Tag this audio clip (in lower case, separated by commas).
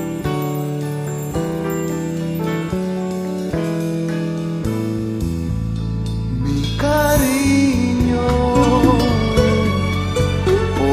music